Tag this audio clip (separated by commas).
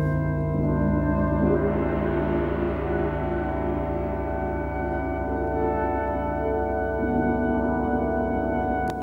Music, Percussion